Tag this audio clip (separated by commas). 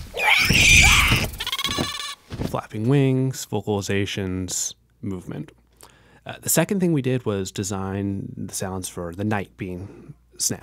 Speech